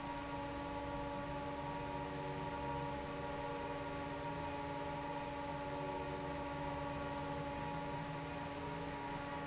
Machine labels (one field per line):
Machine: fan